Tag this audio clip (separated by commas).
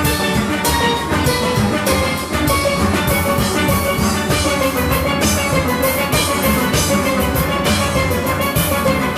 Steelpan, Music